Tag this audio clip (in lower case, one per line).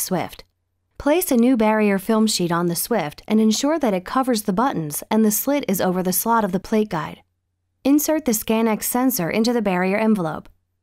speech